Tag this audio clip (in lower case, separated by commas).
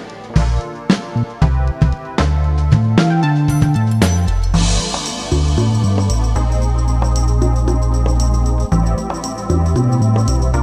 music